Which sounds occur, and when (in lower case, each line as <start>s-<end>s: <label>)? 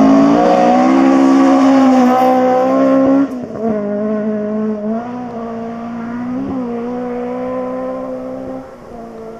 0.0s-3.2s: accelerating
0.0s-9.3s: auto racing
3.6s-8.6s: accelerating
8.6s-9.3s: wind noise (microphone)
8.9s-9.3s: accelerating
9.1s-9.2s: generic impact sounds